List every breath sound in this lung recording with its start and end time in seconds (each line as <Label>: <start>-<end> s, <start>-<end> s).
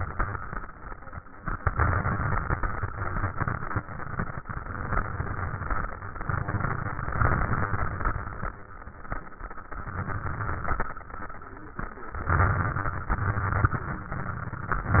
Inhalation: 1.42-8.56 s, 9.82-10.92 s, 12.29-13.15 s
Exhalation: 13.13-13.94 s
Crackles: 1.42-8.56 s, 9.82-10.92 s, 13.13-13.94 s